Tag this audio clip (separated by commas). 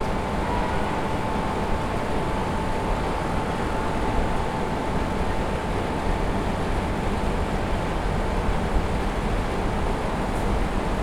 Mechanisms